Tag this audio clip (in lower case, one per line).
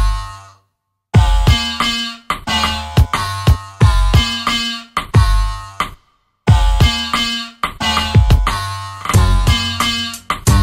drum machine